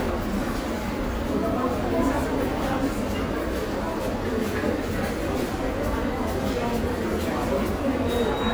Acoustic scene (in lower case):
subway station